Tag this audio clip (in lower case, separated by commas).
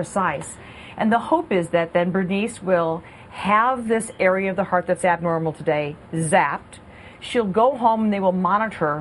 speech, inside a small room